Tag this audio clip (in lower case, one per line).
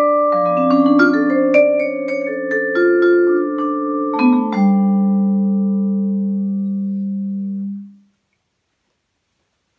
playing vibraphone